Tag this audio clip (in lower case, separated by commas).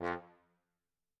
brass instrument, musical instrument, music